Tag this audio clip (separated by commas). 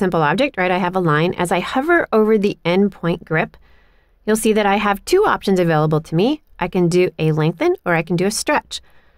Speech